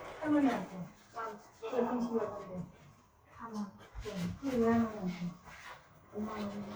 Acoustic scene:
elevator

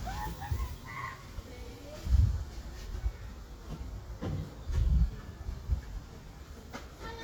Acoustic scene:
park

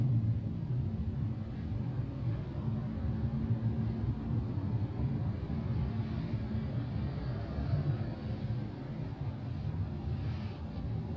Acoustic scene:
car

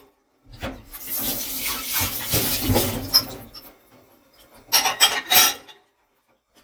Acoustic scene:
kitchen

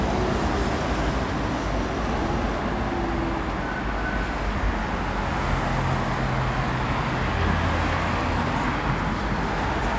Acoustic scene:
street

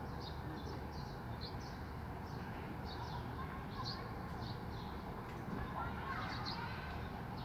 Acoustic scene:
residential area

